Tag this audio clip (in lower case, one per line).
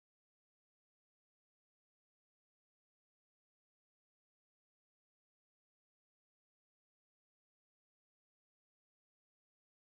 music